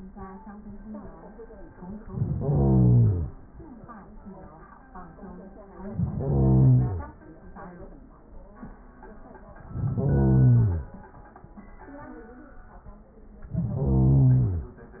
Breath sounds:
Inhalation: 1.98-3.32 s, 5.78-7.12 s, 9.60-10.94 s, 13.40-14.74 s

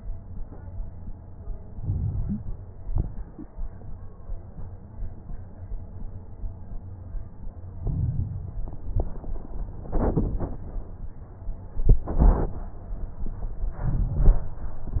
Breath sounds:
Inhalation: 1.73-2.62 s, 7.81-8.70 s, 13.83-14.74 s
Exhalation: 2.72-3.25 s, 8.76-9.29 s
Crackles: 1.73-2.62 s, 2.72-3.25 s, 7.81-8.70 s, 8.76-9.29 s, 13.83-14.74 s

